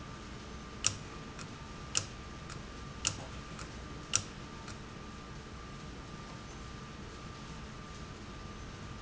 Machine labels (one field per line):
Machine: valve